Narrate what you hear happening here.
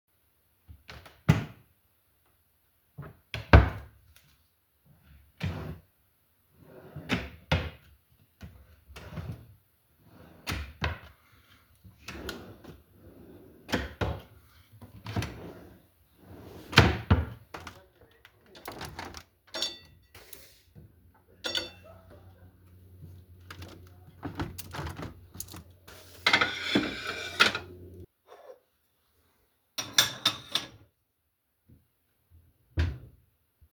I was looking for something in a couple drawers, then i closed the windows and put the dishes in the drawer.